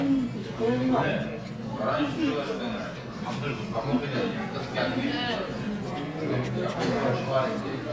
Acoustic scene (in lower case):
crowded indoor space